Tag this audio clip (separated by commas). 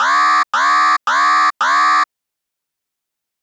Alarm